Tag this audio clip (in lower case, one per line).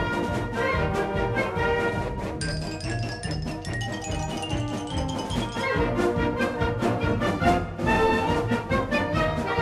percussion
music
marimba